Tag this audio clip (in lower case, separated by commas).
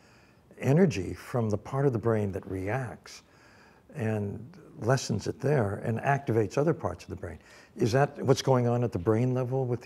speech